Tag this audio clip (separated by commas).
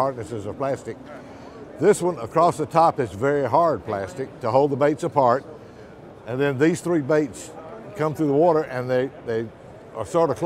Speech